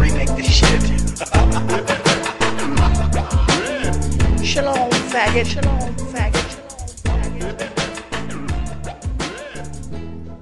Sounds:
hip hop music

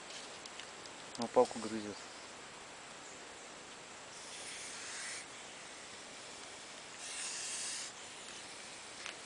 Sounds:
snake hissing

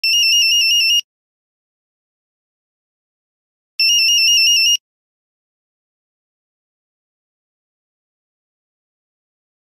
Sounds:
ringtone

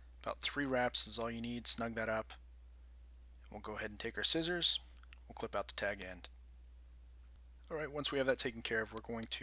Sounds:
speech

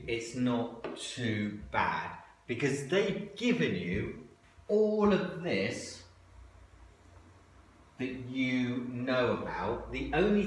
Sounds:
speech
inside a large room or hall

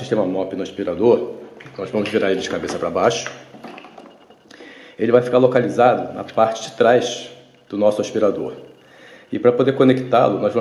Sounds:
speech

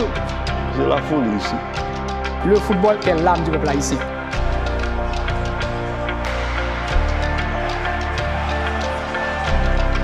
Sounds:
speech
music

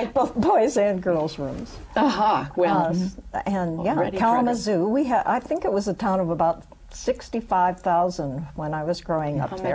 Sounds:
speech
woman speaking

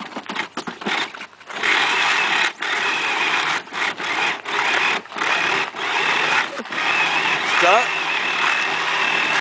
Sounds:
car
speech

